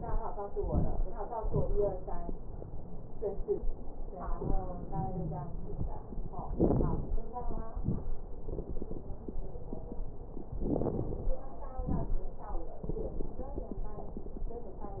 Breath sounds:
0.54-1.08 s: inhalation
0.54-1.08 s: crackles
1.46-2.00 s: exhalation
1.46-2.00 s: crackles
4.86-5.58 s: wheeze
6.49-7.16 s: inhalation
6.49-7.16 s: crackles
7.74-8.13 s: exhalation
7.74-8.13 s: crackles
10.57-11.39 s: inhalation
10.57-11.39 s: crackles
11.76-12.27 s: exhalation
11.76-12.27 s: crackles

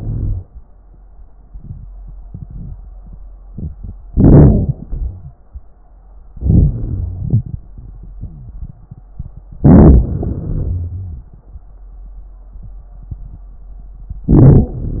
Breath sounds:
0.00-0.47 s: inhalation
4.07-4.71 s: inhalation
4.74-5.37 s: exhalation
4.95-5.37 s: wheeze
6.32-7.16 s: inhalation
6.72-7.29 s: wheeze
7.16-9.53 s: exhalation
8.17-8.74 s: wheeze
9.61-10.05 s: inhalation
10.04-11.35 s: exhalation
10.65-11.35 s: wheeze
14.31-14.76 s: inhalation
14.74-15.00 s: exhalation

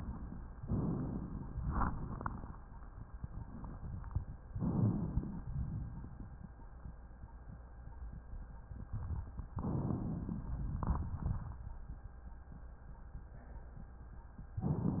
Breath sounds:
0.63-1.55 s: inhalation
1.53-2.88 s: exhalation
1.53-2.88 s: crackles
4.51-5.43 s: inhalation
5.45-6.80 s: exhalation
9.64-10.81 s: inhalation
10.87-11.88 s: exhalation

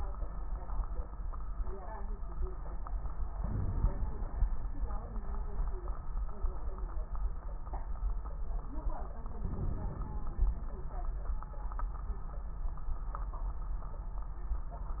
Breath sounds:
3.40-4.44 s: inhalation
3.40-4.44 s: crackles
9.42-10.56 s: inhalation
9.42-10.56 s: crackles

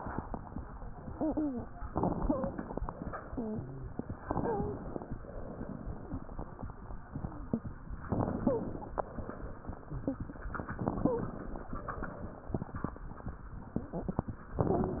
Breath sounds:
1.92-2.89 s: inhalation
2.18-2.58 s: wheeze
4.21-5.12 s: inhalation
4.36-4.76 s: wheeze
8.06-8.98 s: inhalation
8.39-8.79 s: wheeze
10.78-11.69 s: inhalation
10.99-11.39 s: wheeze

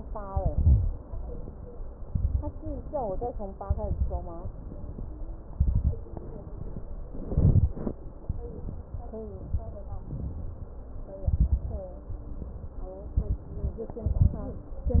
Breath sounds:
0.28-1.00 s: inhalation
0.28-1.00 s: crackles
1.02-1.88 s: exhalation
2.01-2.60 s: inhalation
2.01-2.60 s: crackles
2.68-3.53 s: exhalation
3.63-4.31 s: inhalation
3.63-4.31 s: crackles
4.41-5.26 s: exhalation
5.51-6.13 s: inhalation
5.51-6.13 s: crackles
6.14-6.88 s: exhalation
7.14-7.77 s: inhalation
7.14-7.77 s: crackles
8.27-9.01 s: exhalation
9.40-9.84 s: inhalation
9.40-9.84 s: crackles
10.05-10.79 s: exhalation
11.29-11.89 s: inhalation
11.29-11.89 s: crackles
12.09-12.90 s: exhalation
13.17-13.72 s: inhalation
13.17-13.72 s: crackles
14.08-14.74 s: exhalation
14.08-14.74 s: crackles

